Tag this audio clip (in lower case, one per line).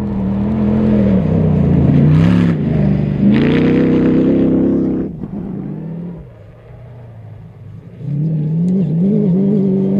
race car
vehicle
car
outside, rural or natural